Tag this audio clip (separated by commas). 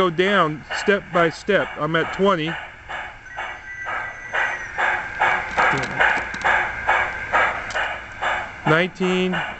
Train